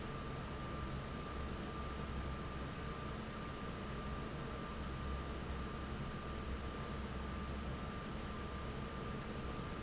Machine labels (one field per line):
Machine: fan